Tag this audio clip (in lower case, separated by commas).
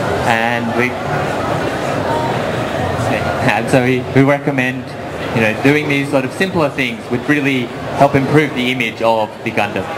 speech, crowd, inside a public space